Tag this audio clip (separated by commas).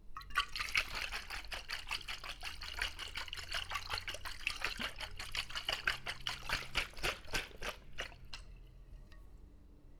Liquid, splatter